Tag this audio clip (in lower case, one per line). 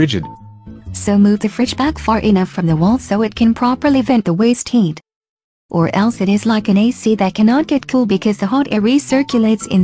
music
speech